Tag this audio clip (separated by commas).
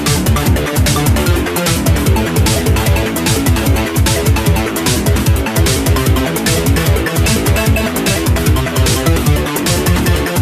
Music